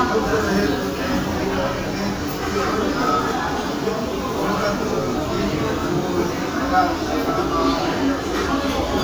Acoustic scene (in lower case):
restaurant